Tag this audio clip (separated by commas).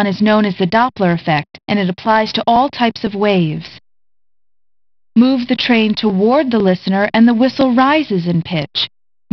Speech